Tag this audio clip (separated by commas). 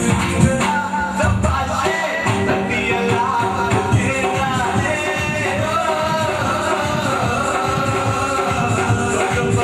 Music, Male singing